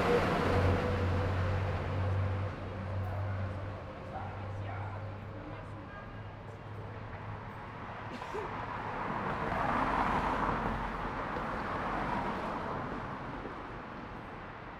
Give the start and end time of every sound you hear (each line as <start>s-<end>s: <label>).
0.0s-0.1s: motorcycle
0.0s-0.1s: motorcycle engine accelerating
0.0s-6.8s: bus
0.0s-6.8s: bus engine accelerating
0.8s-2.4s: bus wheels rolling
4.0s-7.3s: people talking
7.4s-14.8s: car
7.4s-14.8s: car wheels rolling